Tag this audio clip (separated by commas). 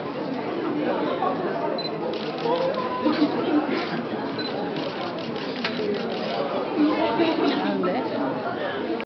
Speech